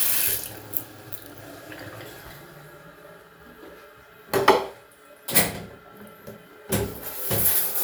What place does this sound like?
restroom